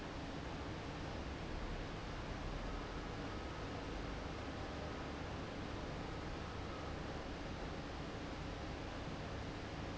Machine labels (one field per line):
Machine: fan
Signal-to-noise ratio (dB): 0 dB